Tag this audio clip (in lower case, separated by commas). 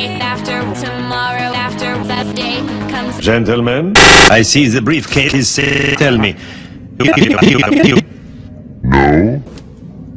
speech, music